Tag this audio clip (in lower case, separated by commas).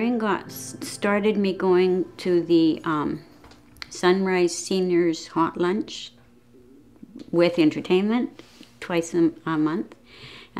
inside a small room, speech